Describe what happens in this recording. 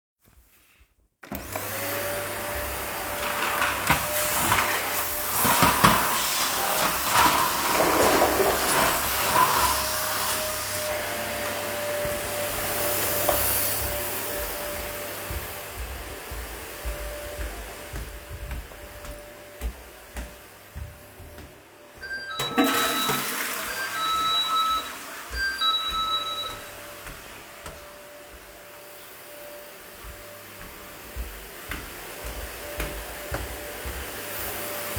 Turn the vacuum on and start cleaning with it (little bit of walking). Walk away from the still running vacuum. Doorbell rings while i flush the toilet. I walk around a bit more and then back to the still running vacuum.